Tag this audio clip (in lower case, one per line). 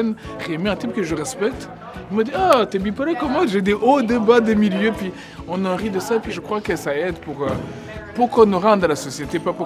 speech
music